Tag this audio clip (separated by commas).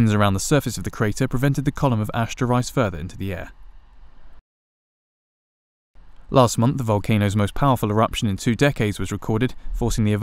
Speech